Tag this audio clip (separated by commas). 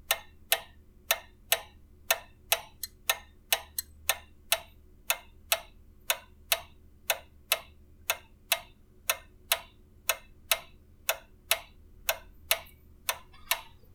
Mechanisms, Clock, Tick-tock